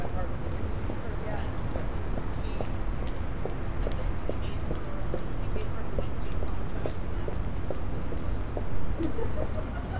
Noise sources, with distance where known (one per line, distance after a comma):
unidentified human voice, far